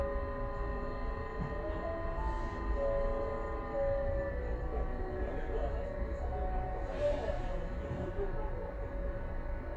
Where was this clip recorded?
on a bus